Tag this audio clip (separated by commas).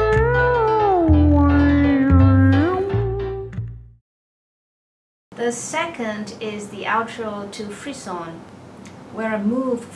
playing theremin